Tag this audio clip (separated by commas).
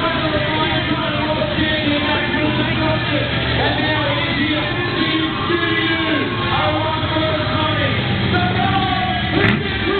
Truck, Vehicle, Speech